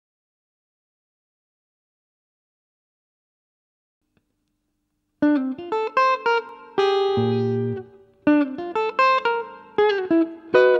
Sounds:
guitar
plucked string instrument
musical instrument
music
electric guitar

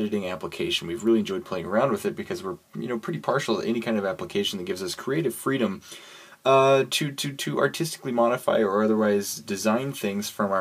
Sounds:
speech

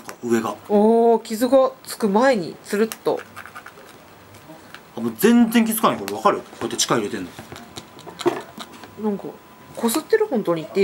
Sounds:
speech

